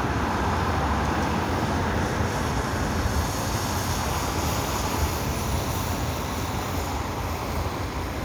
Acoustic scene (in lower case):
street